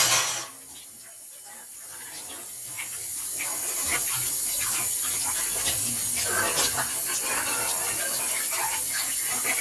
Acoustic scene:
kitchen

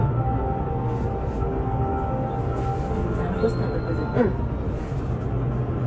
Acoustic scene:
bus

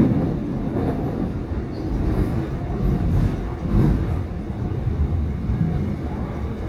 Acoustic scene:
subway train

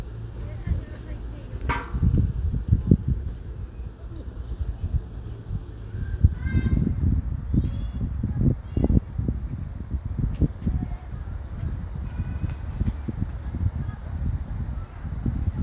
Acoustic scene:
residential area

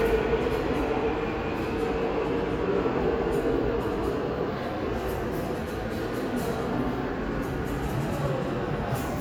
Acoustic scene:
subway station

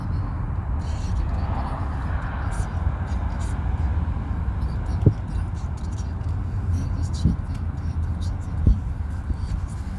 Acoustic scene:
car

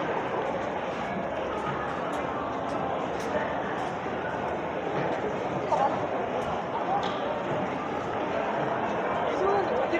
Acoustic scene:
crowded indoor space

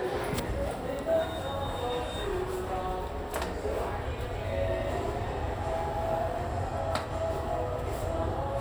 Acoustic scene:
elevator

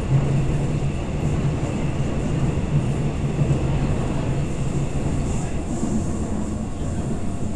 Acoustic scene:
subway train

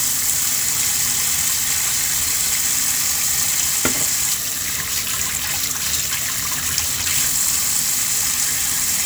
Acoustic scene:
kitchen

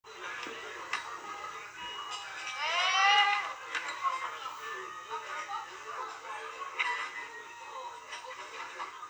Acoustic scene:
restaurant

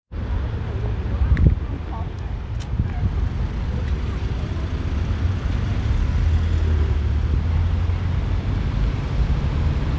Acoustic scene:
street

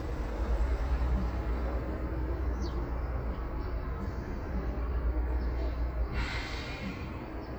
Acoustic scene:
street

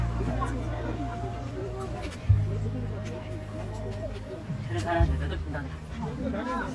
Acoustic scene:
park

